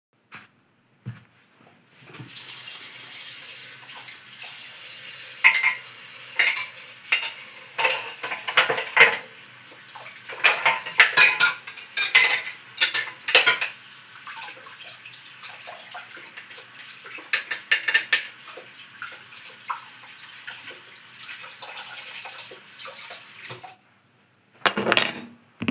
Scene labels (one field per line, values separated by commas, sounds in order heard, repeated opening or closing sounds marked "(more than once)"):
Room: kitchen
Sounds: running water, cutlery and dishes